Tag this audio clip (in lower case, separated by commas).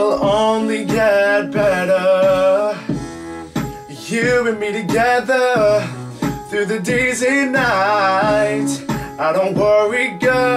music, male singing